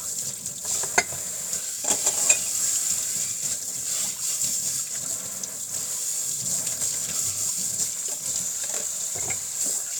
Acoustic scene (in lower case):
kitchen